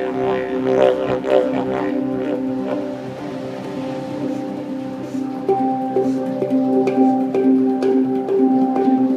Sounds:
didgeridoo
music

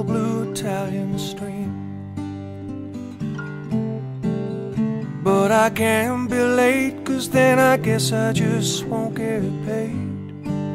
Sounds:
music

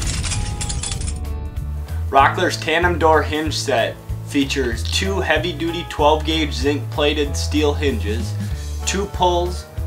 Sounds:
speech
music

